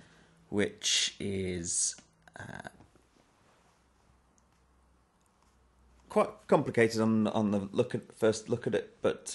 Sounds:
speech

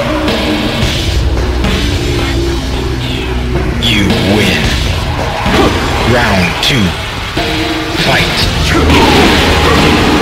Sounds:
speech, music

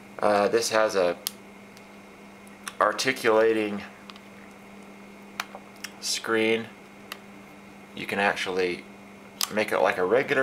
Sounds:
speech

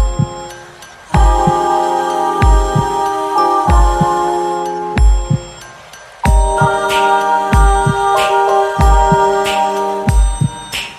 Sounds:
music

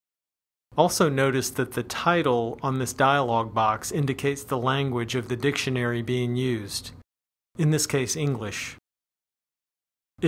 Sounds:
speech

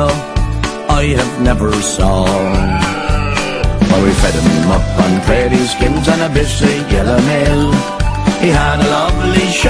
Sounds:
oink, music

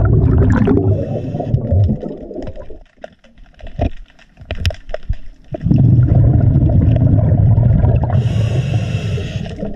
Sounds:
scuba diving

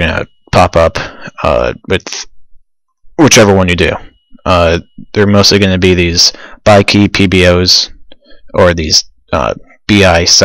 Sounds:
speech

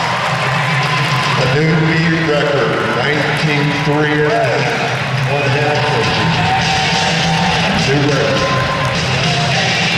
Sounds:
speech, music

